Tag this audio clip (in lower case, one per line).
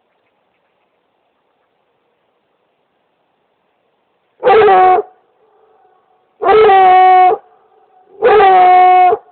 dog baying